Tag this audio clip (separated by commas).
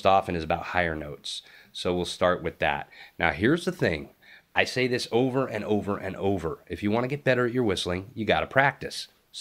Speech